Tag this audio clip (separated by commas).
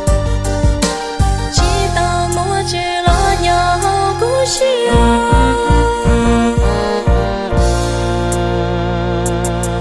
Music, Singing